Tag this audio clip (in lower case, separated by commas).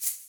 music, rattle (instrument), percussion, musical instrument